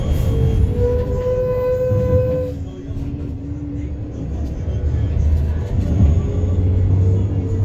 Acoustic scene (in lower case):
bus